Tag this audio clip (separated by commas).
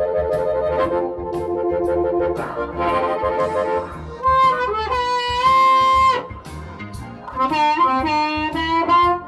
Harmonica, woodwind instrument